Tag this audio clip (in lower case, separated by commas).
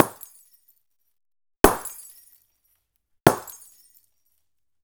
glass, shatter